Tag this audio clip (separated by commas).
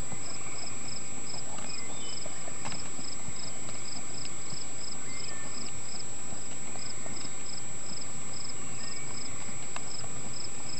Animal, Clip-clop